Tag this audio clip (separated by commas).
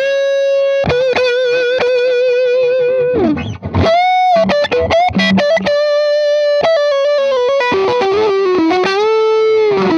Music